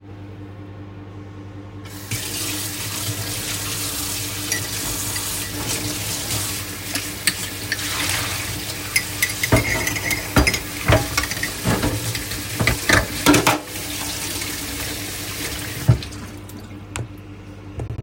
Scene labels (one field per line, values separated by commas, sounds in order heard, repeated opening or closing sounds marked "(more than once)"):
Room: kitchen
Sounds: microwave, running water, cutlery and dishes